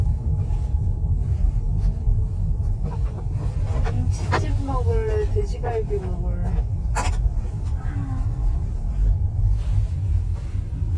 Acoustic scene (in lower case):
car